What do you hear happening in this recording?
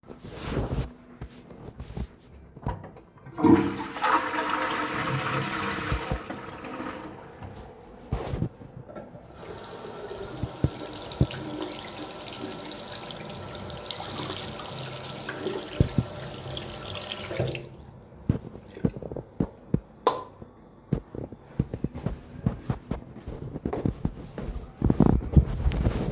I flush the toilet then wash my hands on the sink, after that I turn of the light switch and walk away from the bathroom while you can hear rustling sounds from the pocket.